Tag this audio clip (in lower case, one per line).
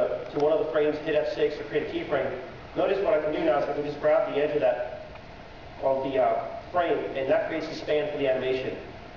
speech